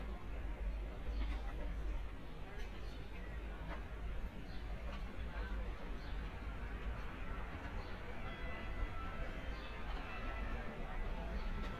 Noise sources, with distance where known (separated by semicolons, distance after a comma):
music from a fixed source